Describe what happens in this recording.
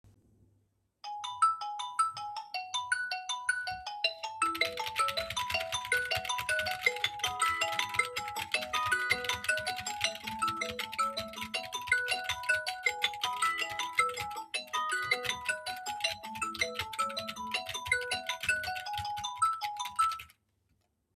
Phone is ringing as I type on my Keyboard.